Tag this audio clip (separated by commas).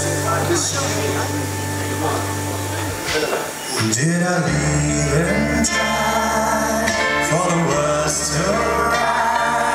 Speech, Music